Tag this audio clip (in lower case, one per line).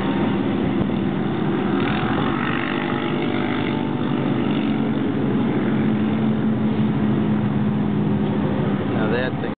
speech